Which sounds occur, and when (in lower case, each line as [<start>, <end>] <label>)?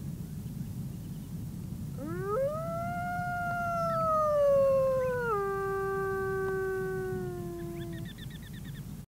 [0.00, 9.04] howl (wind)
[0.36, 1.66] bird call
[1.96, 8.04] howl
[3.47, 3.57] tick
[3.83, 4.07] bird call
[4.97, 5.35] bird call
[6.45, 6.55] tick
[7.53, 8.86] bird call